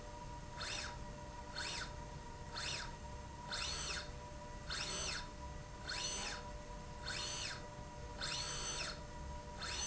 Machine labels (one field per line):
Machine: slide rail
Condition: normal